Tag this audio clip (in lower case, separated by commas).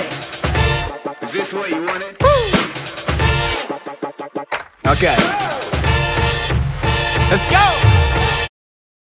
music, speech